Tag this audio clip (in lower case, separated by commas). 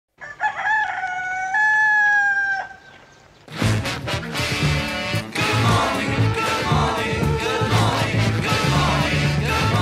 music, livestock, cock-a-doodle-doo